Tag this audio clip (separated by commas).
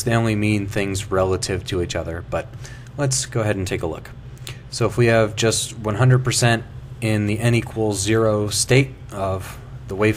Speech